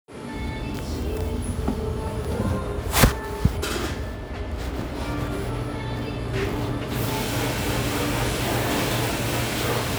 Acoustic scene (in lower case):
restaurant